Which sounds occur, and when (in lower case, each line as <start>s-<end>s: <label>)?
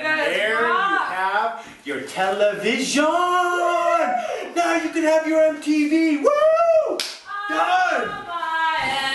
0.0s-1.1s: female speech
0.0s-9.1s: background noise
0.1s-1.7s: man speaking
1.6s-1.8s: breathing
1.8s-4.1s: man speaking
3.5s-4.5s: whoop
4.2s-4.5s: breathing
4.5s-6.2s: man speaking
6.9s-7.2s: clapping
7.3s-9.1s: female singing